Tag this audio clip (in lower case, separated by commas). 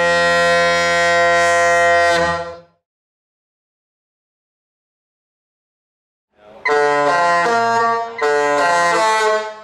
foghorn, music